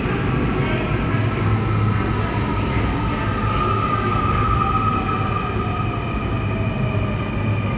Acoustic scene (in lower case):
subway station